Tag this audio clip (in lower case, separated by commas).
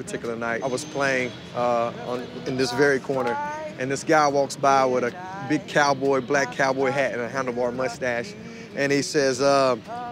speech